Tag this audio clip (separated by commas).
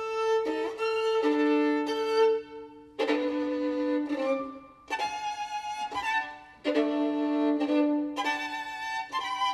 Violin, Musical instrument, Music